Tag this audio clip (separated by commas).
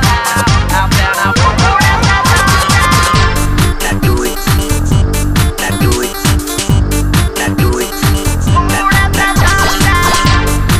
Disco, Music